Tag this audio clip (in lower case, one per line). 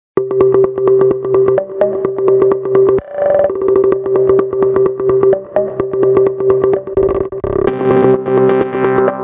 music
drum machine